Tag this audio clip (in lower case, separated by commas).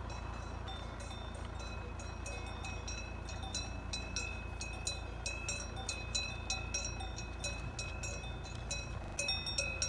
cattle